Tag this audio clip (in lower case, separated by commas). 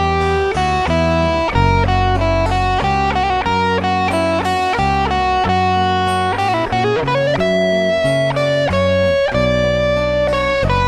plucked string instrument, acoustic guitar, music, guitar, musical instrument